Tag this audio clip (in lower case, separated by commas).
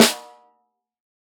music, musical instrument, snare drum, drum, percussion